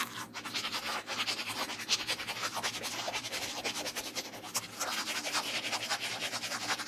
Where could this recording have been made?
in a restroom